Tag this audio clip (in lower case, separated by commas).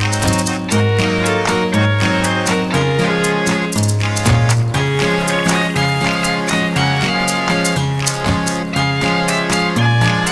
music